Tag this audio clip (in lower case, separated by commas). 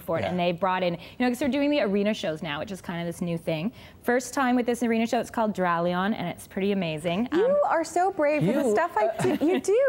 speech, inside a small room